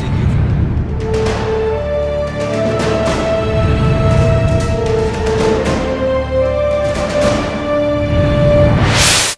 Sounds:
Music

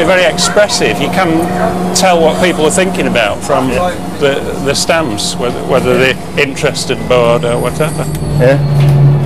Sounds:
Speech

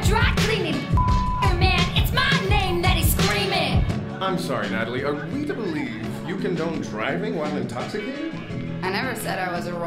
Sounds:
rapping

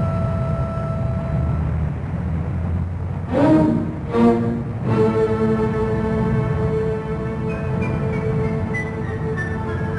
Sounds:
Music, outside, urban or man-made

